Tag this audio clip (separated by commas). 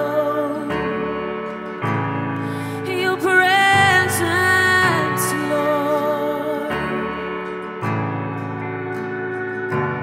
Soul music, Music